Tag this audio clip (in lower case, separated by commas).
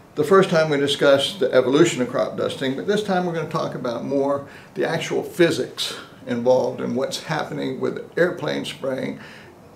speech